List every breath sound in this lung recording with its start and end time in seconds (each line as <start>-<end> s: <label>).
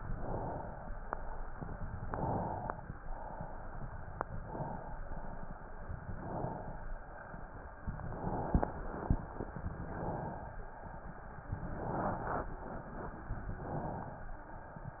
0.00-1.05 s: inhalation
2.00-2.90 s: inhalation
2.90-4.15 s: exhalation
4.42-5.03 s: inhalation
5.03-6.05 s: exhalation
6.13-6.99 s: inhalation
6.99-7.85 s: exhalation
7.97-8.81 s: inhalation
8.82-9.76 s: exhalation
9.76-10.64 s: inhalation
10.64-11.64 s: exhalation
11.75-12.52 s: inhalation
12.52-13.52 s: exhalation
13.60-14.48 s: inhalation